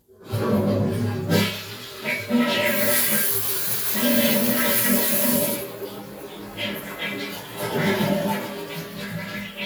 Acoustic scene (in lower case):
restroom